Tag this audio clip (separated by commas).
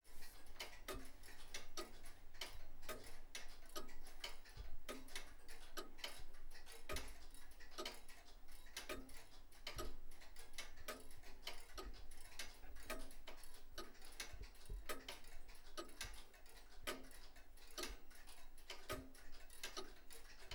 Tick-tock, Clock, Mechanisms